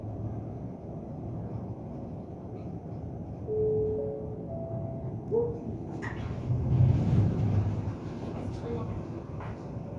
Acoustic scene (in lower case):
elevator